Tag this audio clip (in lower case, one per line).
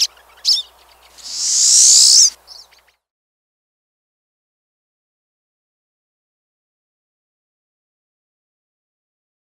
wood thrush calling